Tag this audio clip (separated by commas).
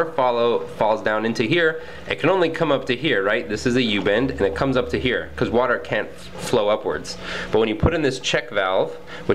Speech